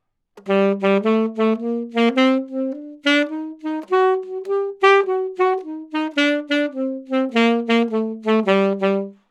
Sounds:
music, woodwind instrument, musical instrument

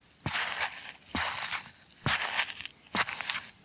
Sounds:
walk

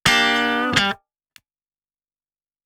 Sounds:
plucked string instrument, musical instrument, music, guitar, electric guitar

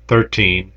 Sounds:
human voice

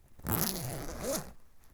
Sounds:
domestic sounds, zipper (clothing)

